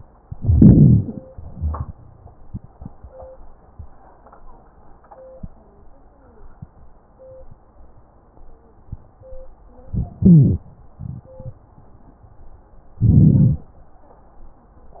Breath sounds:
Inhalation: 0.21-1.10 s, 9.93-10.68 s, 13.01-13.64 s
Exhalation: 1.31-2.31 s
Wheeze: 1.57-2.31 s, 10.24-10.66 s
Crackles: 13.01-13.64 s

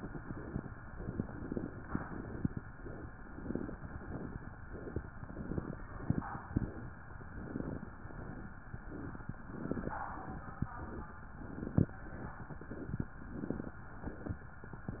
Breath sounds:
Inhalation: 0.97-1.75 s
Exhalation: 0.00-0.72 s, 1.84-2.62 s

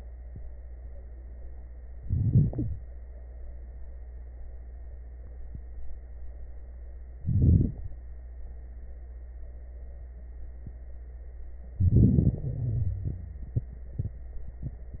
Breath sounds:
Inhalation: 1.97-2.83 s, 7.25-7.98 s, 11.76-12.41 s
Exhalation: 12.39-13.52 s
Wheeze: 1.97-2.83 s, 12.39-13.52 s
Crackles: 7.25-7.98 s, 11.76-12.41 s

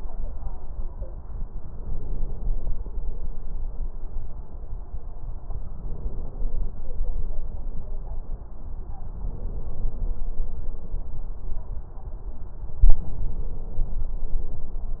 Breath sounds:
Inhalation: 1.57-2.73 s, 5.74-6.78 s, 9.15-10.19 s, 12.85-14.17 s

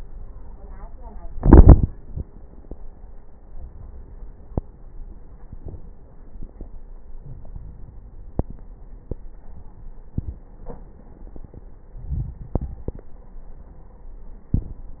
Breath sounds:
Inhalation: 7.17-8.67 s, 11.90-13.19 s
Crackles: 7.17-8.67 s, 11.90-13.19 s

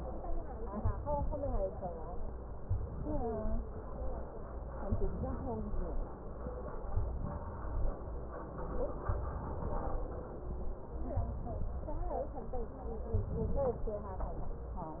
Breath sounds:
Inhalation: 0.80-1.61 s, 2.68-3.64 s, 4.95-5.90 s, 6.97-7.92 s, 9.09-10.05 s, 11.21-12.16 s, 13.10-14.05 s

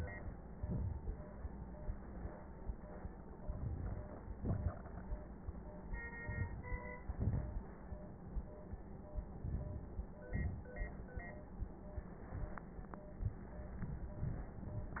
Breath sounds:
Inhalation: 3.44-4.02 s, 6.22-6.58 s, 9.43-9.89 s
Exhalation: 4.38-4.75 s, 7.13-7.59 s, 10.30-10.76 s

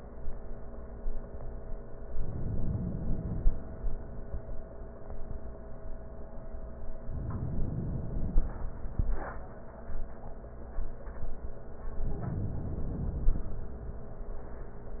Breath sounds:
Inhalation: 2.14-3.72 s, 7.15-8.72 s, 12.02-13.48 s

